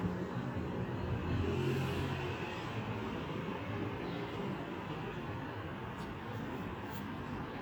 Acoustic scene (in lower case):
residential area